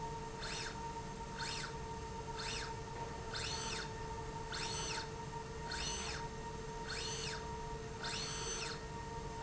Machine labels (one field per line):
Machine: slide rail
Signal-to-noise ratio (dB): 0 dB